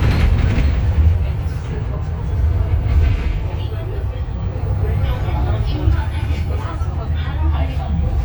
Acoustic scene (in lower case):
bus